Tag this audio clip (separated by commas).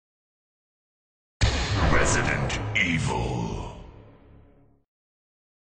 Speech, Sound effect